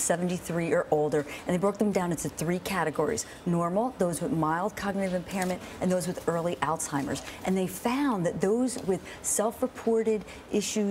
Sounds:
speech

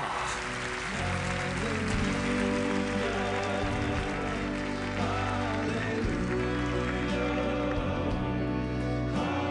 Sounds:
music

